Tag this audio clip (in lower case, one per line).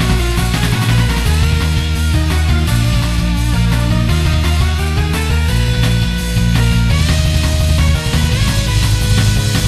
music